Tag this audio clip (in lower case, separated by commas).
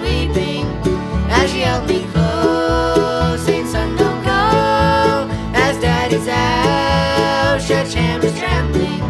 music